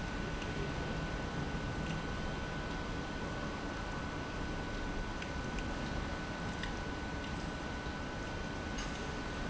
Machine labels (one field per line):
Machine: pump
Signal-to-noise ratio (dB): -6 dB